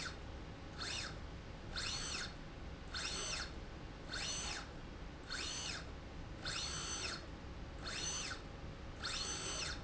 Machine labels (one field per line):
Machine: slide rail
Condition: normal